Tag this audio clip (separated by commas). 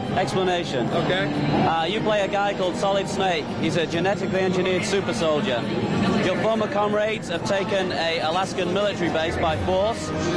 Music, Speech